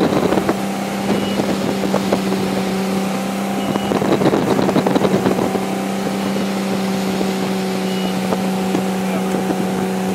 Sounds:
motorboat

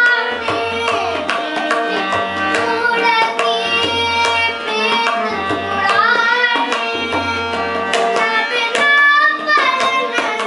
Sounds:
child singing

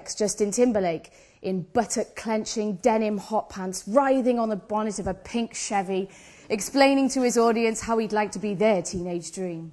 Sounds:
speech

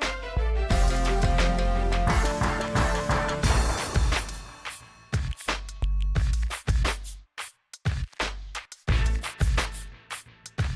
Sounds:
music

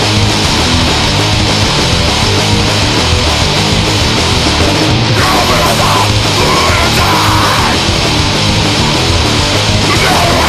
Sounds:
music

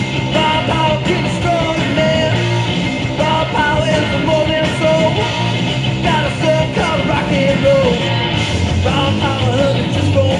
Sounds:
music

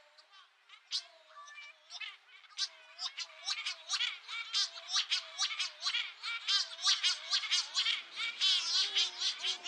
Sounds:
bird squawking

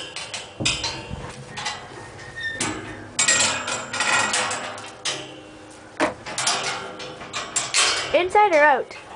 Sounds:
speech

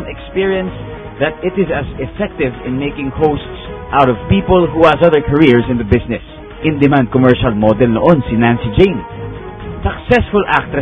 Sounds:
speech
music

